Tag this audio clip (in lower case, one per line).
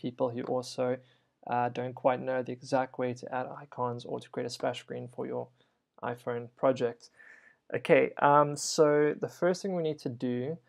speech